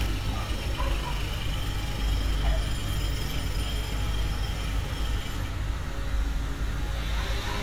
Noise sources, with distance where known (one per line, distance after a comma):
jackhammer, near